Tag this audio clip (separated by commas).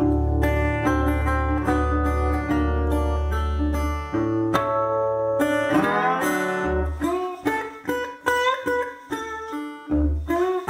Strum, Plucked string instrument, Guitar, Music, Musical instrument, Blues, Steel guitar